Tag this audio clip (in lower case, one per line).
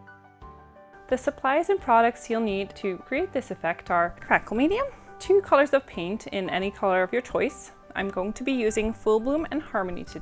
music
speech